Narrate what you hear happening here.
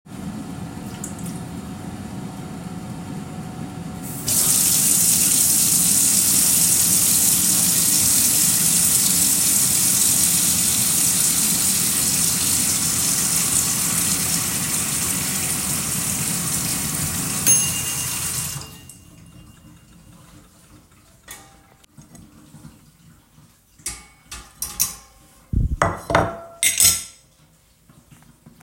The phone was placed on the kitchen counter near the air fryer while the it was on. I turned on the water tap. The air fryer was on while the water was running. The air fryer turned off, I stopped the water tap, and then prepared a dish and a fork.